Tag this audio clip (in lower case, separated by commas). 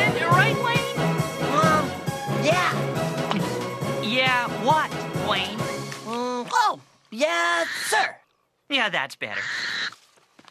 music, speech